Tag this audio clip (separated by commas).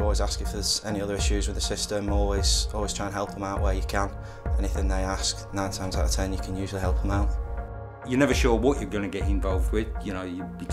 Speech, Music